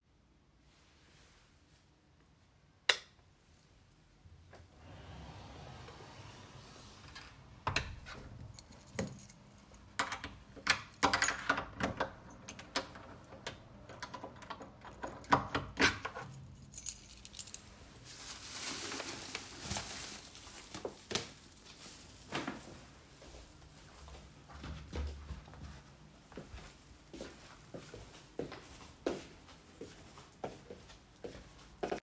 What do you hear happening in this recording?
I turned off the light,closed and locked the door. then picked up a trash bag and walked toward to the front door